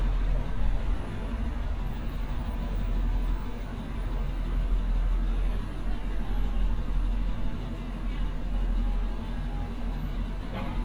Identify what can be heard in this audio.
engine of unclear size